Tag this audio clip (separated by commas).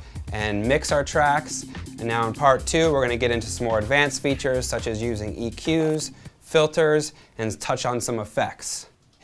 Speech, Music